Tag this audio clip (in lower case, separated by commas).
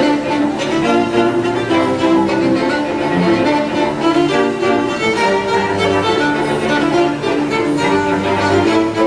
violin, double bass, cello, string section, bowed string instrument